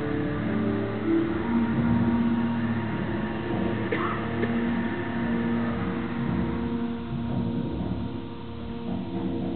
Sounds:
Music, Timpani

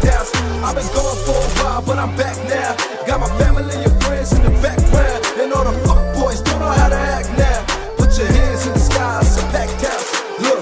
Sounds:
Music, Funk

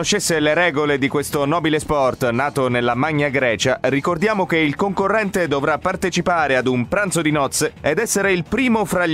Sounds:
Music, Speech

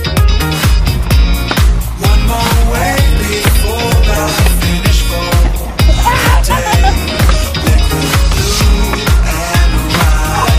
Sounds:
Music

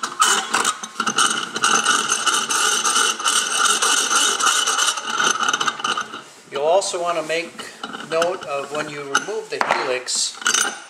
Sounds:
Mechanisms, pawl, Gears

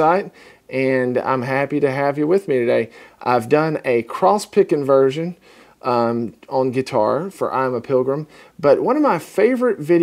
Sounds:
Speech

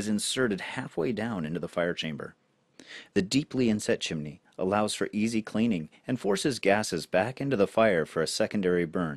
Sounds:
Speech

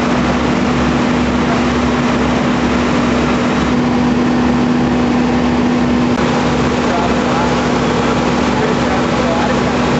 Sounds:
Speech

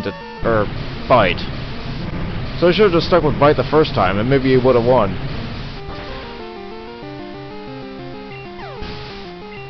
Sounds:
Speech

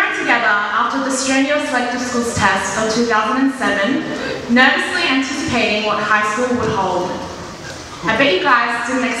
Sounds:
Female speech, Speech, Narration

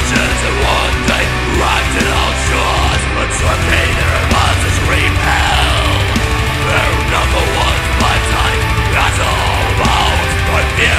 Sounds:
Music

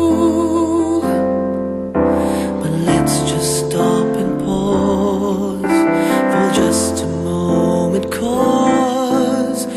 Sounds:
Music

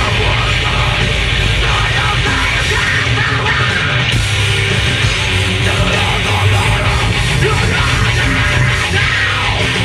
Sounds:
Heavy metal, Singing, Music

